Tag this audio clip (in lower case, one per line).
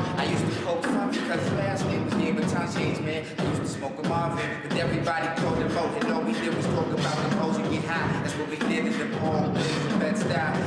male singing
music